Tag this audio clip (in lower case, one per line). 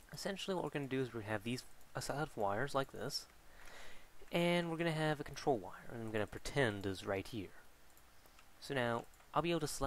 speech